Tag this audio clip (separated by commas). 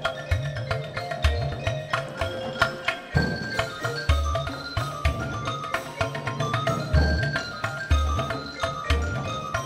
Music, Percussion